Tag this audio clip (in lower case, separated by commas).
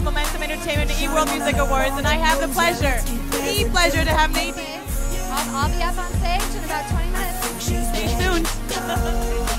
speech, music